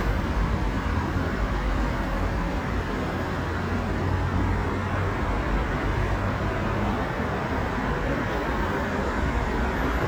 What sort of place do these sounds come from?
street